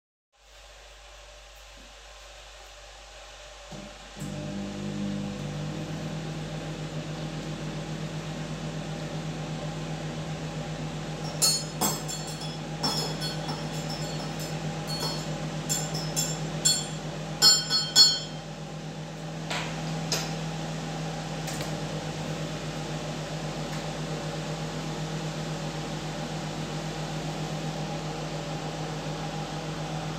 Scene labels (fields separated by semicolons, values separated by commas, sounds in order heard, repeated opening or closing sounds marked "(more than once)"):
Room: kitchen; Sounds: coffee machine, microwave, cutlery and dishes, footsteps